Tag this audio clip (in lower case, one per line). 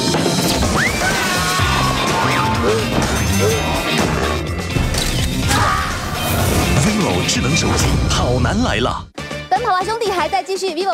bouncing on trampoline